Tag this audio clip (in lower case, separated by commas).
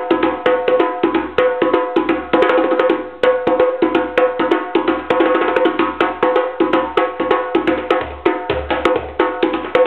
music, wood block, percussion